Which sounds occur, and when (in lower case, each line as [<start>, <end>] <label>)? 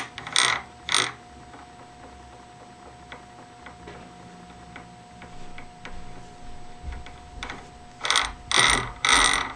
[0.00, 0.61] gears
[0.00, 9.55] mechanisms
[0.83, 1.14] gears
[1.33, 6.02] gears
[6.83, 7.77] gears
[8.01, 8.35] gears
[8.52, 8.92] gears
[9.02, 9.55] gears